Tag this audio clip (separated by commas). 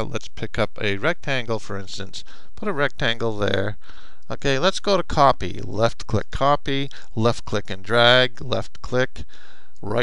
Speech